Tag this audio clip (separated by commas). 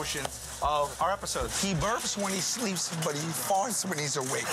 Speech